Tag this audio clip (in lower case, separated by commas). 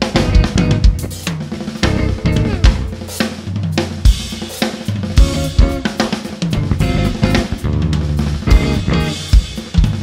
music, guitar, musical instrument, hi-hat, drum, percussion, drum kit, bass drum, bass guitar, cymbal